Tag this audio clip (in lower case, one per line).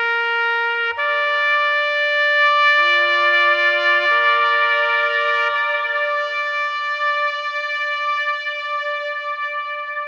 echo
music